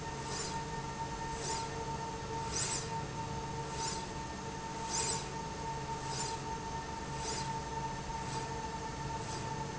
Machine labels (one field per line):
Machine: slide rail